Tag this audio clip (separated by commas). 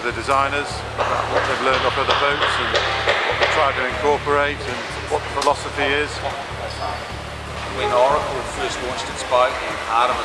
Music, Speech